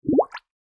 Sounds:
Gurgling, Water

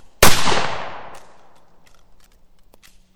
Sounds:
Explosion, Gunshot

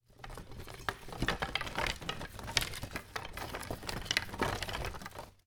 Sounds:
Rattle

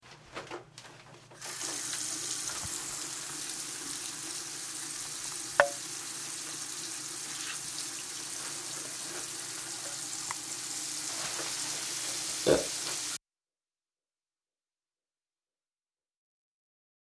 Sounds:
eructation

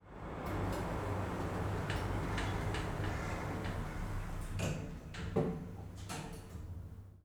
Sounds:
Sliding door, Domestic sounds, Door

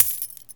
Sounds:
Coin (dropping), Domestic sounds

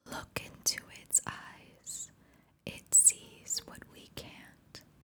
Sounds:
Whispering, Human voice

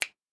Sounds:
Finger snapping, Hands

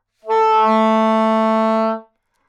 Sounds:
Wind instrument, Musical instrument, Music

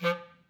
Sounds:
Musical instrument, Wind instrument, Music

